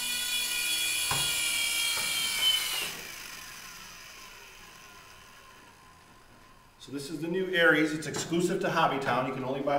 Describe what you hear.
An electric engine works and then stops followed by a man talking